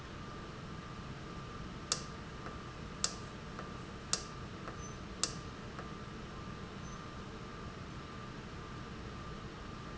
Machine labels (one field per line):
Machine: valve